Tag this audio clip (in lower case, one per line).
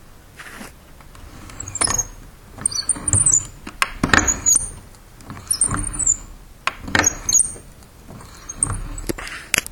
door
domestic sounds
squeak